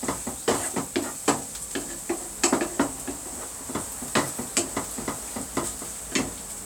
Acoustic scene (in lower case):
kitchen